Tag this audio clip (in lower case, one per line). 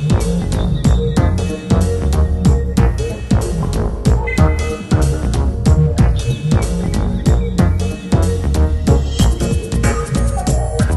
music